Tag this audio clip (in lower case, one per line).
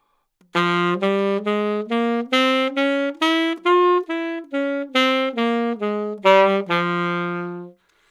wind instrument
music
musical instrument